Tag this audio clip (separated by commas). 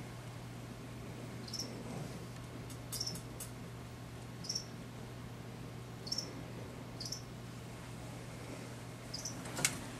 mouse squeaking, Mouse